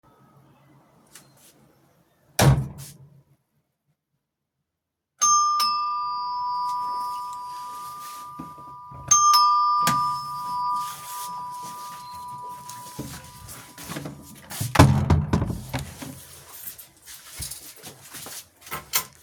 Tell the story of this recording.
I ring the doorbell, walk to the door then open and close the door